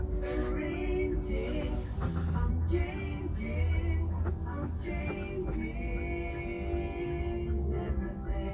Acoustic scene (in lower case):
car